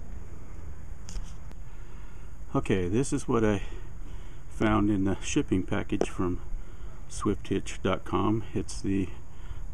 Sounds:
speech

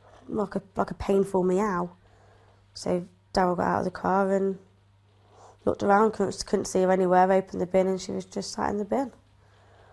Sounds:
speech

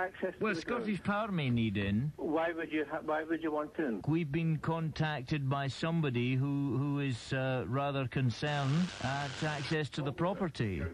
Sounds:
speech
radio

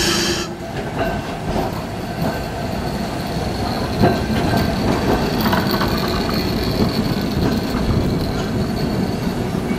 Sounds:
vehicle

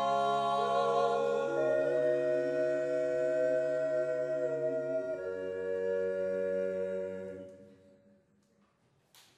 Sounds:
yodelling

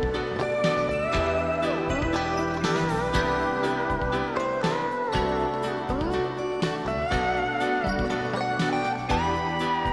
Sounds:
music

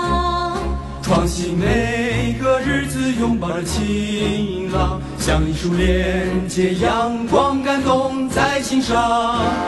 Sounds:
jazz
music

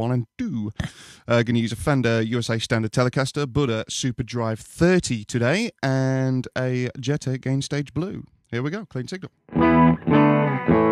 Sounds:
speech

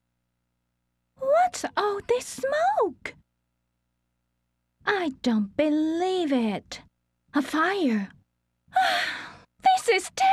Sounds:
speech

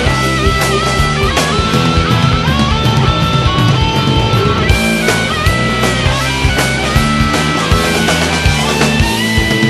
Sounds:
music
punk rock
rock music

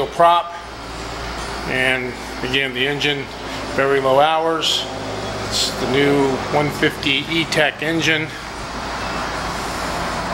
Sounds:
motorboat
speech
vehicle

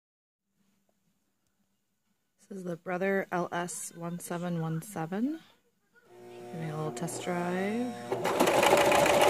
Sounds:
speech
sewing machine

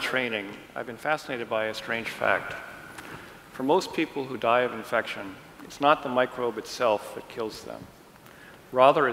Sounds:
speech

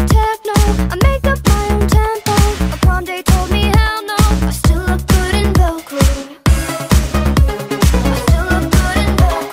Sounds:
music

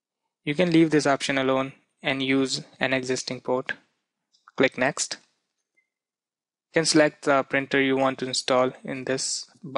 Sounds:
speech

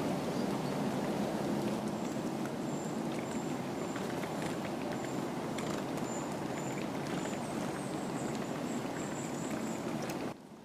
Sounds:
woodpecker pecking tree

